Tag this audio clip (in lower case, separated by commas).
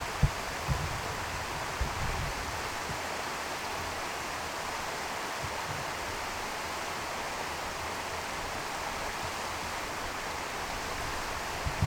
water